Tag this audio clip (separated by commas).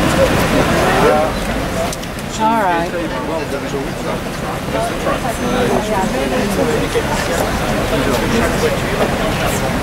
Speech, speech noise